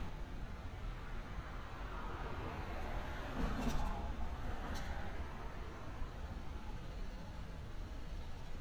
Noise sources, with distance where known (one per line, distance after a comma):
medium-sounding engine, far